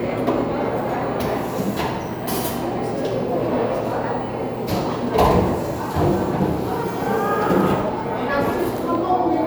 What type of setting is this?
cafe